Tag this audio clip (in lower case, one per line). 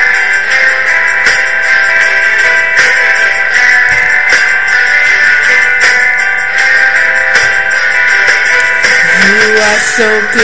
female singing
music